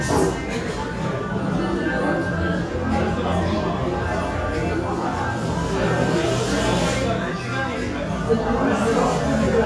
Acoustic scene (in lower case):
crowded indoor space